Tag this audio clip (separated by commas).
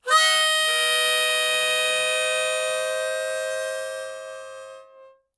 Music, Musical instrument, Harmonica